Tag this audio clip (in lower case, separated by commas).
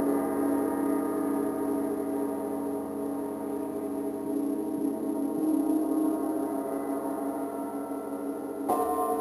gong